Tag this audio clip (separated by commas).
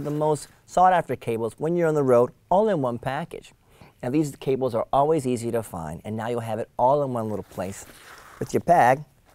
Speech